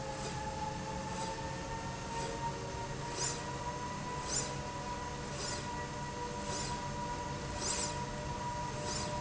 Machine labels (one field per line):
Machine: slide rail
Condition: normal